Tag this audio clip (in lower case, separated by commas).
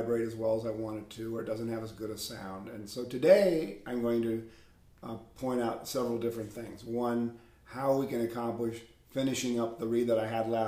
speech